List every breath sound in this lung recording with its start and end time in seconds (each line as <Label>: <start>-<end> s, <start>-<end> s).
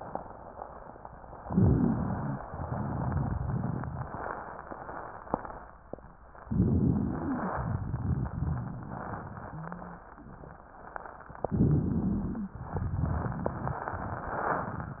Inhalation: 1.39-2.40 s, 6.49-7.54 s, 11.44-12.54 s
Exhalation: 2.46-4.09 s, 7.56-10.04 s, 12.60-15.00 s
Wheeze: 1.35-2.40 s, 9.48-10.03 s, 11.44-12.51 s
Rhonchi: 6.47-7.38 s
Crackles: 2.44-4.07 s, 7.53-8.77 s